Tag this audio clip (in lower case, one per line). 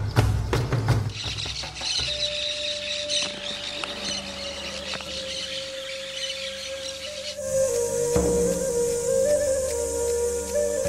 music
animal